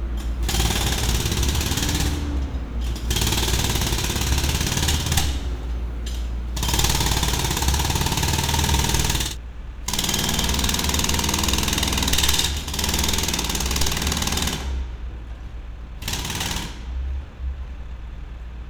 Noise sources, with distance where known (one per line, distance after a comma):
jackhammer, near